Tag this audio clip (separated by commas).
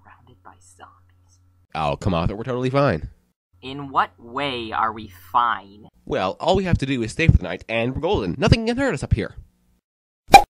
Speech